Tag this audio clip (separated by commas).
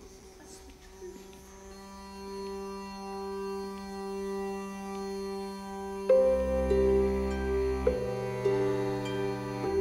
Music, Speech